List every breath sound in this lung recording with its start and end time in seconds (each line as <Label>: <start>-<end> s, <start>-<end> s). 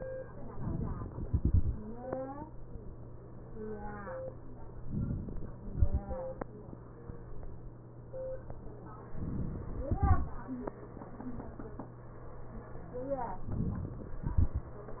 Inhalation: 0.52-1.15 s, 4.85-5.51 s, 9.12-9.92 s, 13.53-14.26 s
Exhalation: 1.15-1.72 s, 5.51-6.73 s, 14.26-15.00 s